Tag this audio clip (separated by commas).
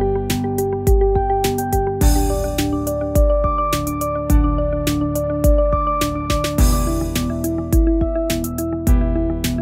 Music